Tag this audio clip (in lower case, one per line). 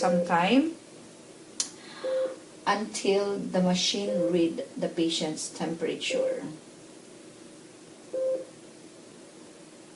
speech